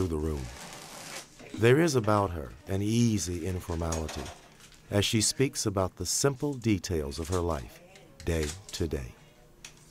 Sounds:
speech, inside a small room

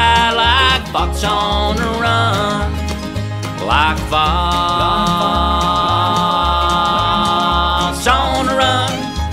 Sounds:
music, bluegrass

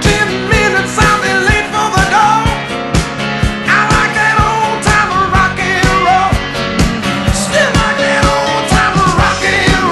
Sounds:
rock and roll, music

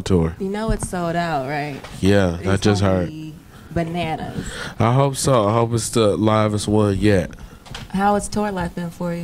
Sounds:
speech

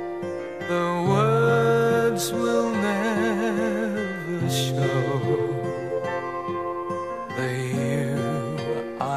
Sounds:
male singing, music

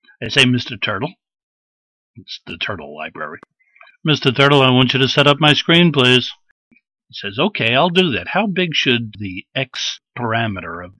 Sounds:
speech

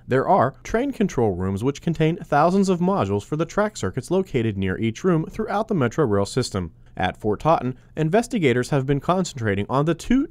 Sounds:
speech

